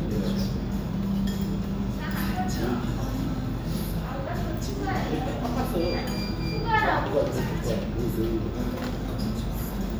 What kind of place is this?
restaurant